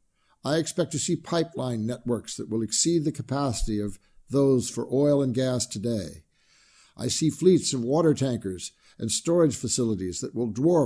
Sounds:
Speech

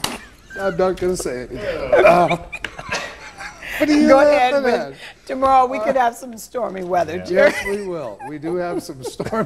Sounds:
Speech, Chuckle

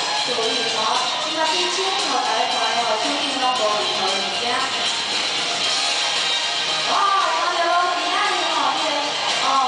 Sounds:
Speech, Music

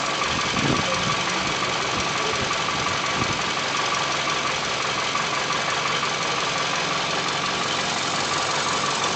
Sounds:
Engine, Car, Motor vehicle (road), Vehicle

